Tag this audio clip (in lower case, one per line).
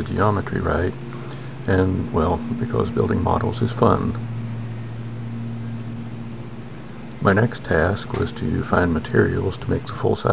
speech